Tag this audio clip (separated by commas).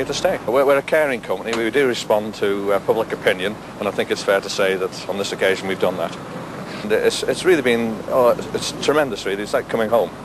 Speech